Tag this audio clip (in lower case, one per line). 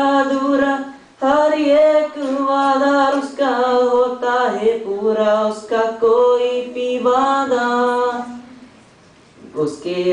male singing